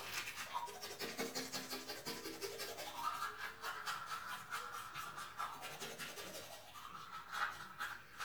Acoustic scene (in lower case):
restroom